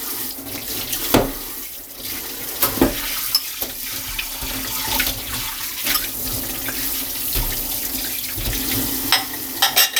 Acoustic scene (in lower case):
kitchen